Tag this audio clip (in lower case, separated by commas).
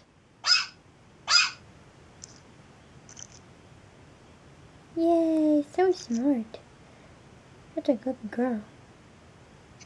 speech, inside a small room